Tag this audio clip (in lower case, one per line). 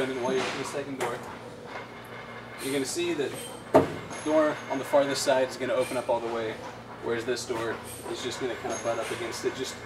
door
speech